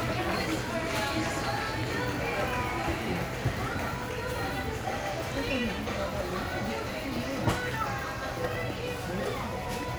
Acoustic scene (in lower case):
crowded indoor space